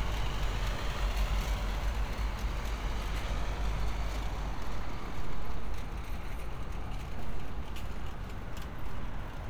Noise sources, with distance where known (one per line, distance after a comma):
engine of unclear size